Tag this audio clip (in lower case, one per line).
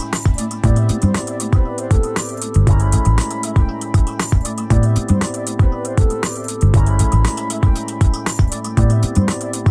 music